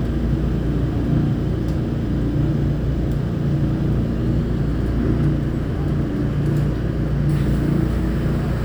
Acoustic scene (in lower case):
subway train